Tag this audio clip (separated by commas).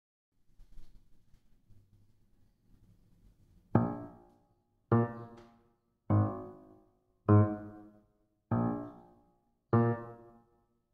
Keyboard (musical), Electric piano, Piano